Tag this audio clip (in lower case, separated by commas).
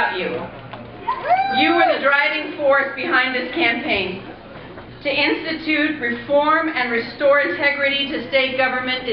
narration, woman speaking, speech